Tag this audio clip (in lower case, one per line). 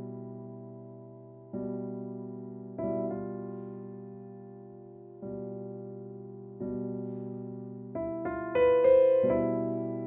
playing piano
electric piano
keyboard (musical)
piano